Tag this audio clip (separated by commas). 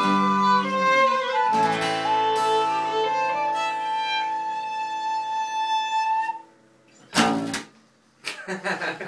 Bowed string instrument, Pizzicato, Violin